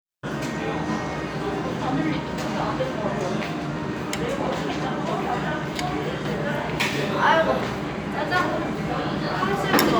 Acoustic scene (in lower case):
restaurant